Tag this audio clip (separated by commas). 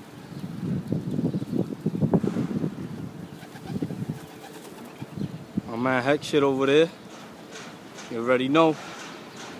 Bird, Speech, Pigeon, outside, urban or man-made